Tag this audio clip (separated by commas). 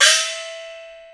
Gong, Musical instrument, Music, Percussion